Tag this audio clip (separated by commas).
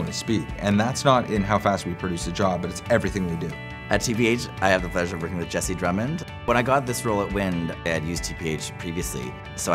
Music, Speech